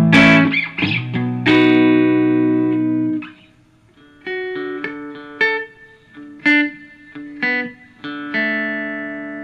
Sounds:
electric guitar, music

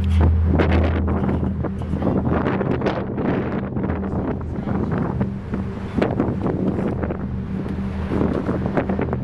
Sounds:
music, outside, urban or man-made

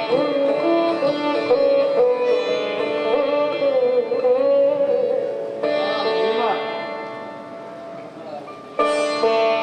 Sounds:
plucked string instrument, speech, music, carnatic music, musical instrument, sitar

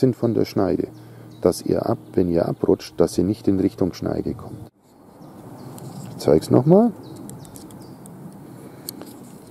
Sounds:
sharpen knife

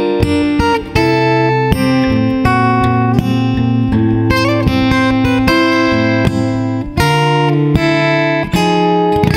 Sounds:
music, plucked string instrument, musical instrument, strum, acoustic guitar, guitar

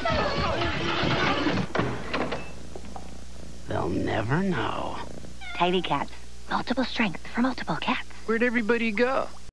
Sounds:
domestic animals, speech, cat, animal, meow

